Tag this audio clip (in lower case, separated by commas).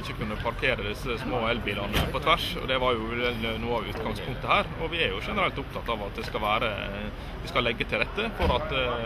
speech